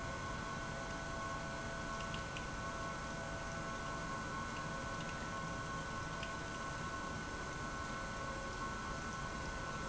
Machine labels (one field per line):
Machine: pump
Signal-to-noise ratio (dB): 0 dB